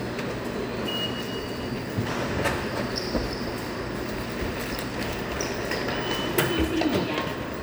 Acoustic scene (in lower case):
subway station